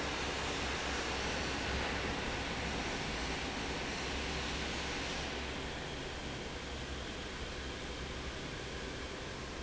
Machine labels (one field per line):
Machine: fan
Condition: normal